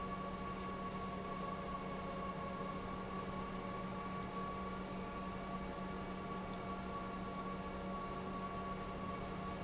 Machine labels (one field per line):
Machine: pump